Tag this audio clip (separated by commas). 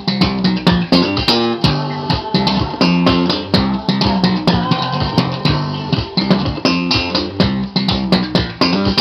Bass guitar, Music